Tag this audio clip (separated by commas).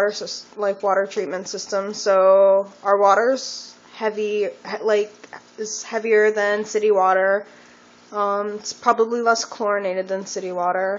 Speech